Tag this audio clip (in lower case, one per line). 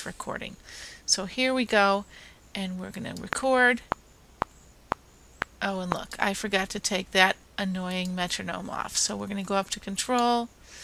speech